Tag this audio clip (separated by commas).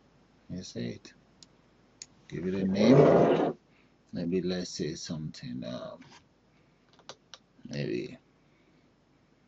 inside a small room, Speech, Computer keyboard